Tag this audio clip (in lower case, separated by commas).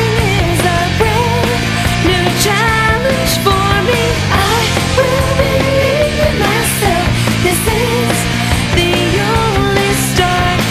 dance music, music